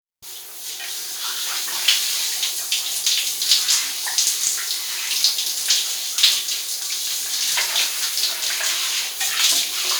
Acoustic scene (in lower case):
restroom